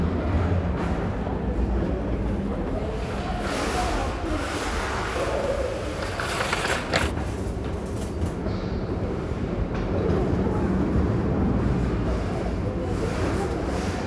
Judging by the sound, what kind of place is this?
crowded indoor space